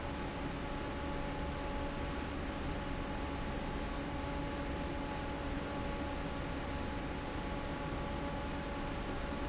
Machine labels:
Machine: fan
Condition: normal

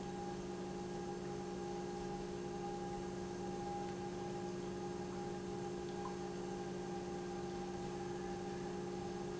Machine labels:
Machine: pump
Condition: normal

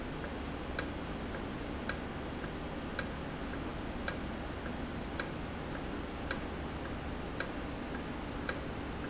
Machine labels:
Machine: valve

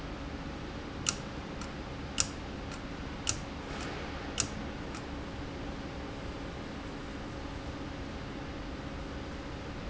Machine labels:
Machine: valve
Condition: abnormal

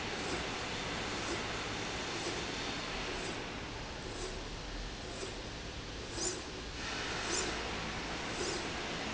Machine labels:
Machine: slide rail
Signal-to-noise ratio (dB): -6 dB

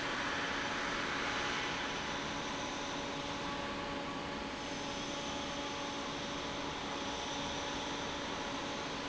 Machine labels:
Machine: fan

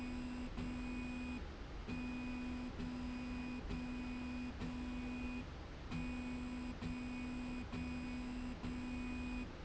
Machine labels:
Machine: slide rail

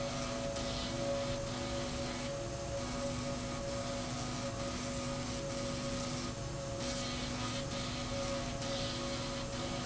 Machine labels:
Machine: slide rail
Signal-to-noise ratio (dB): -6 dB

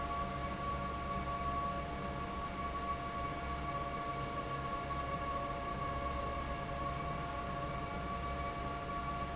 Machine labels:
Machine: fan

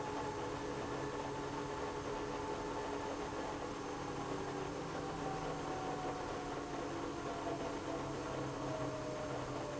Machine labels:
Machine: pump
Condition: abnormal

